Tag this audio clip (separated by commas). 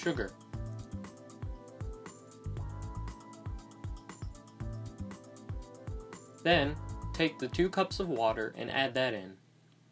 Music, Speech